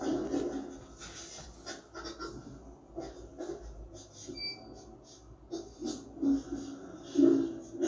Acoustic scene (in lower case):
elevator